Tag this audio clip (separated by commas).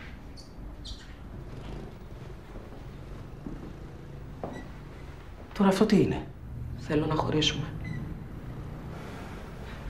Wail